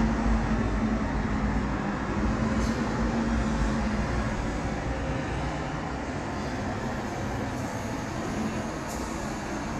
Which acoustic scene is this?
residential area